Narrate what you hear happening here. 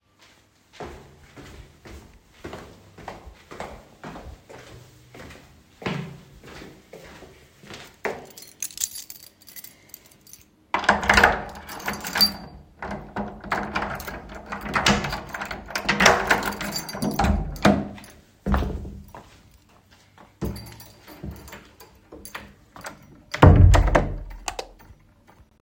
I walk to the door, unlock it using my keys, open the door, and turn on the light.